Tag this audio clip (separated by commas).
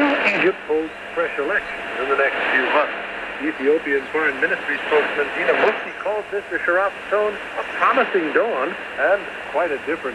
Speech, Radio